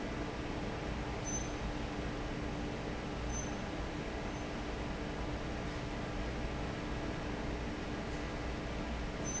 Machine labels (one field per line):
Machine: fan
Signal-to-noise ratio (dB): -6 dB